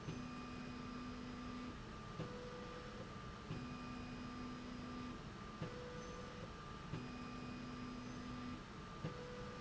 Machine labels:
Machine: slide rail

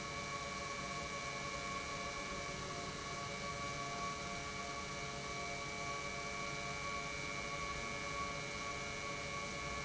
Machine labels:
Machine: pump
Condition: normal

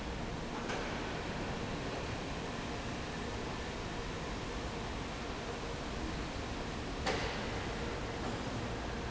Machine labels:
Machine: fan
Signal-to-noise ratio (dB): -6 dB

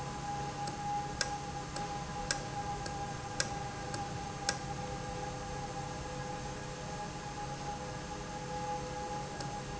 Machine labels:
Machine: valve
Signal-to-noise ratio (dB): -6 dB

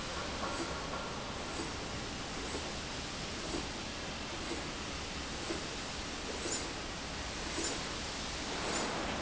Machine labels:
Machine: slide rail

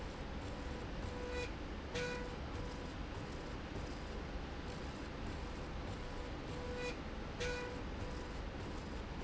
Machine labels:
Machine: slide rail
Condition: normal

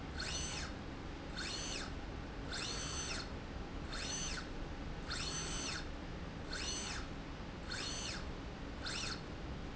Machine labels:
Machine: slide rail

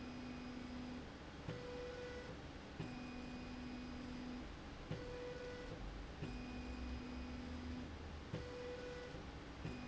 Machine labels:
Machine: slide rail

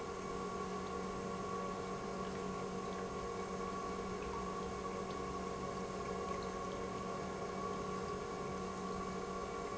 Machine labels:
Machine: pump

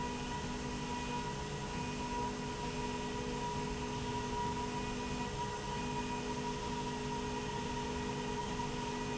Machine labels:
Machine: slide rail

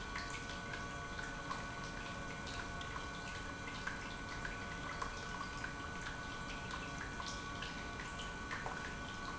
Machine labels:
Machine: pump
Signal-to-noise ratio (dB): 6 dB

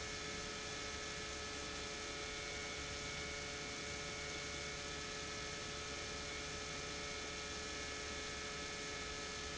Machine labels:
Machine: pump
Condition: normal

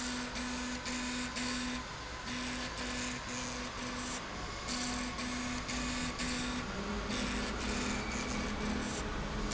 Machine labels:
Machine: slide rail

